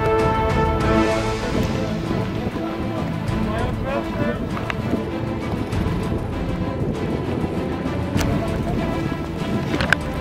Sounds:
Music, Speech, Water vehicle, Rowboat, Vehicle

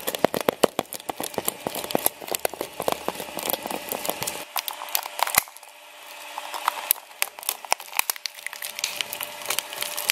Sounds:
plastic bottle crushing

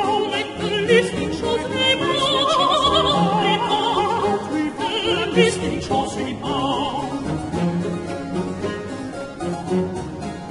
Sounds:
Music

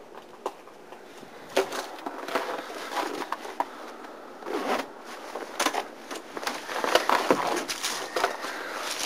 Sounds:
inside a large room or hall

